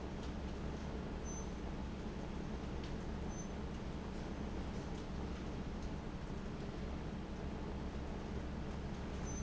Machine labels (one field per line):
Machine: fan